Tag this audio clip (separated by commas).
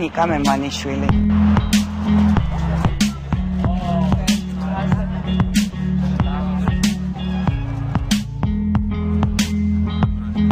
Music, Speech